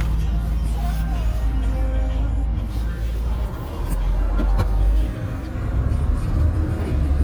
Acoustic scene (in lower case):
car